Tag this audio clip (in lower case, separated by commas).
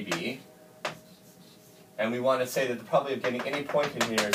speech